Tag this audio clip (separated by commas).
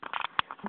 Telephone, Alarm